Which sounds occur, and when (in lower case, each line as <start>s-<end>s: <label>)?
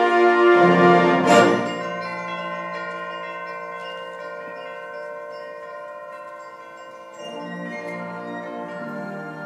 0.0s-9.4s: music